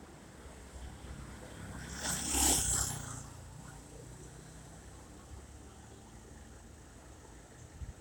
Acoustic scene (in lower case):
street